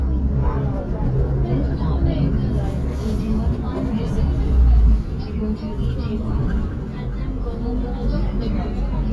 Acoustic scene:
bus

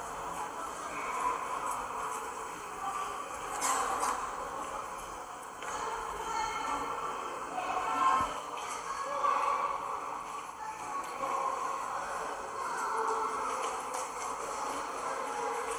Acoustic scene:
subway station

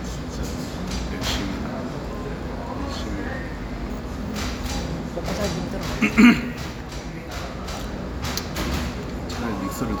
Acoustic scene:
cafe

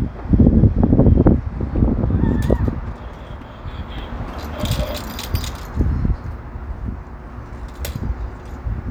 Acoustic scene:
residential area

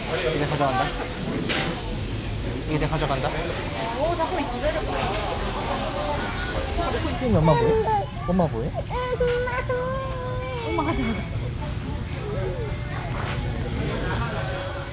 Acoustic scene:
restaurant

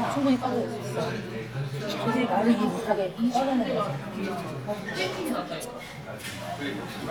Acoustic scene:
crowded indoor space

